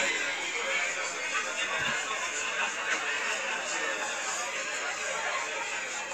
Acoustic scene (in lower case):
crowded indoor space